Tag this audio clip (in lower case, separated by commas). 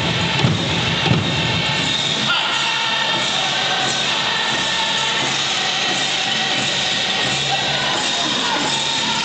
music